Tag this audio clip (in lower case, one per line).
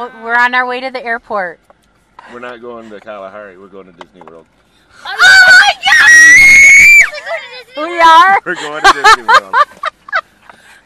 speech
kid speaking